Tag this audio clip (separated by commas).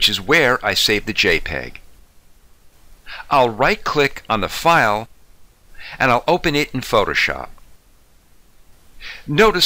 Speech, inside a small room